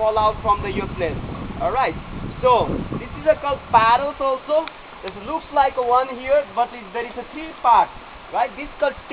The human communication about the something and also hear the flow of water sounds